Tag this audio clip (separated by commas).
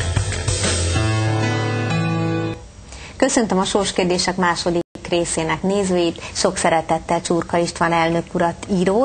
Speech, Music